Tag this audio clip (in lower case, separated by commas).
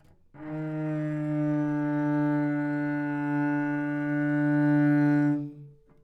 musical instrument, bowed string instrument, music